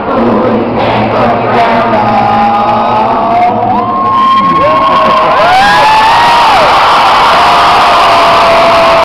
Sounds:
music, male singing

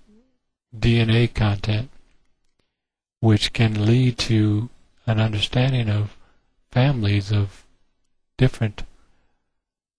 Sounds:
speech synthesizer

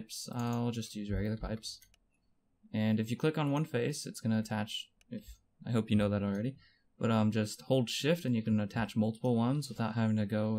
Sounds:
speech

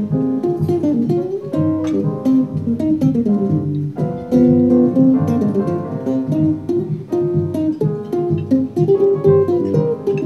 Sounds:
inside a large room or hall, music, musical instrument, jazz

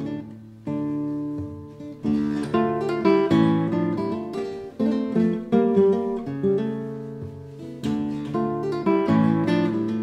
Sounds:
music, plucked string instrument, musical instrument, guitar

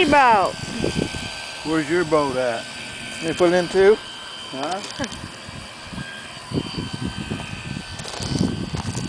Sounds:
speech

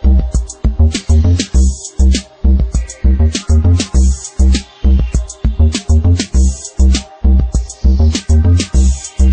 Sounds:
music

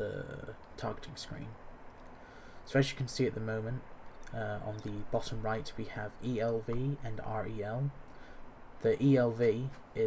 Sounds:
speech, outside, rural or natural

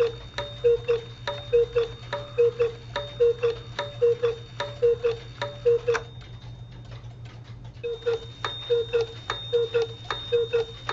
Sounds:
clock

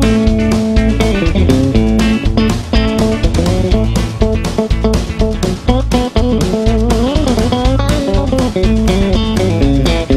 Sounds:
plucked string instrument, strum, guitar, musical instrument, music

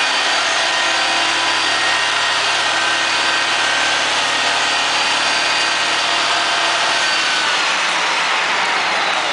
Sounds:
truck, vehicle

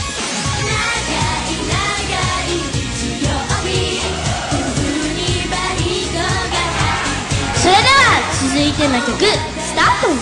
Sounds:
singing, pop music, music, kid speaking, music of asia

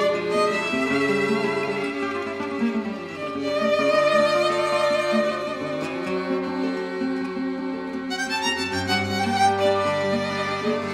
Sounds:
musical instrument, music, fiddle

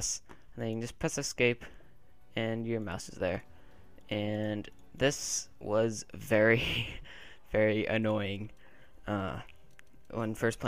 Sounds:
speech

